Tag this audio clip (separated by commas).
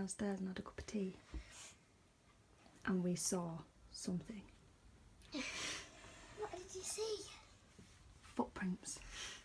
Speech, inside a small room